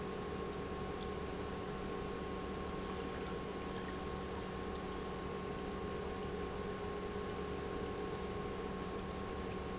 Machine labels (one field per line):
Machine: pump